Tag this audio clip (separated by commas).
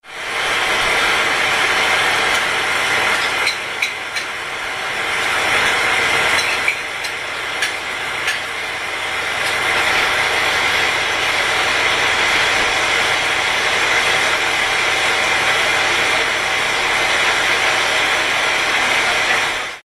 Frying (food), home sounds